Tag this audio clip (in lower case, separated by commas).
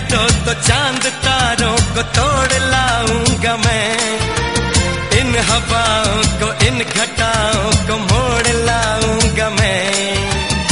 music, singing, music of bollywood